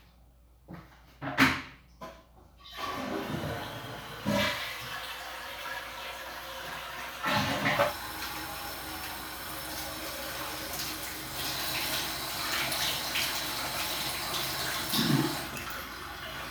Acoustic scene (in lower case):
restroom